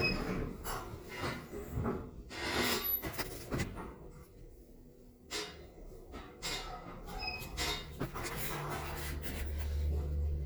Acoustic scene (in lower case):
elevator